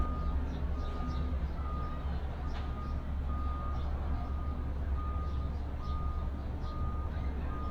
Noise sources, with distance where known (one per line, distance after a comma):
reverse beeper, far